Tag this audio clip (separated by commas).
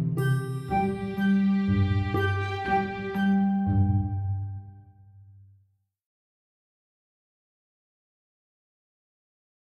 Music